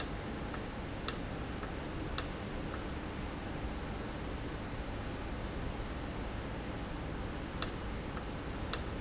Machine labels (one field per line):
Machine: valve